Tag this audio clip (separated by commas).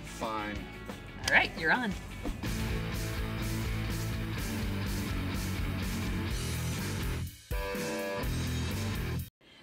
Speech, Music